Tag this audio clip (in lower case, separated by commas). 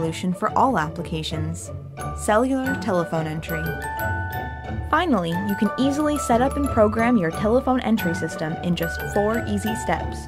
speech, music